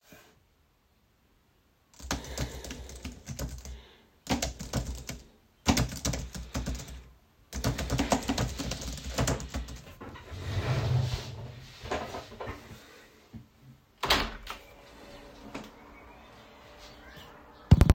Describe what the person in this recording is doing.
I typed on my keyboard and then stood up from my chair. Then I opened the window.